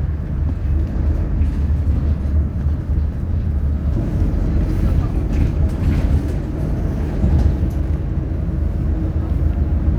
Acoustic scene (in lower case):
bus